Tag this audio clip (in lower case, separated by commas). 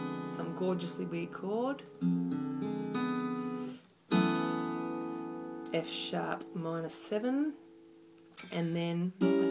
musical instrument, plucked string instrument, guitar, music, speech, acoustic guitar